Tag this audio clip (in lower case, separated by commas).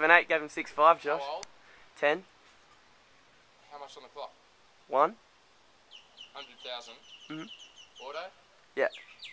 speech, environmental noise